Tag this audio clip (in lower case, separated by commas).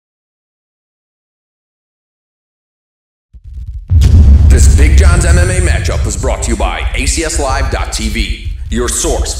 music, speech, silence